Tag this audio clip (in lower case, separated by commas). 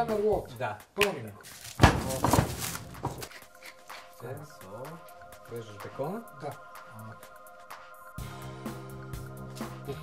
music, roll, speech